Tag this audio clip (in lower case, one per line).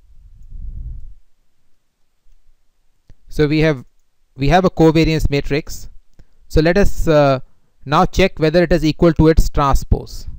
inside a small room
speech